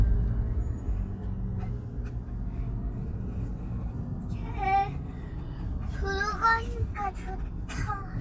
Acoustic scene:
car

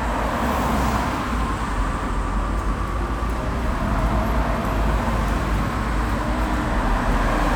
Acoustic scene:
street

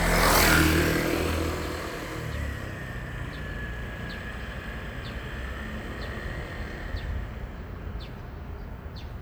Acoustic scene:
residential area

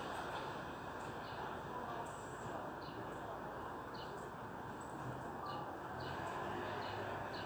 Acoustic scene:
residential area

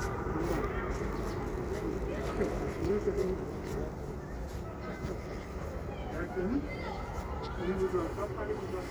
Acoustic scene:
residential area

